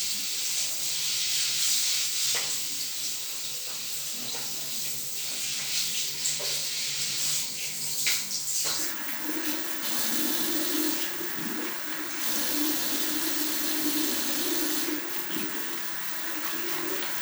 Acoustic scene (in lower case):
restroom